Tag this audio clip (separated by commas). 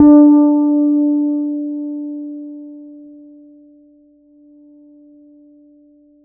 Musical instrument, Guitar, Plucked string instrument, Bass guitar, Music